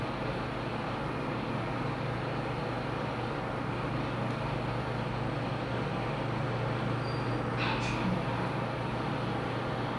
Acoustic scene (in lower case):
elevator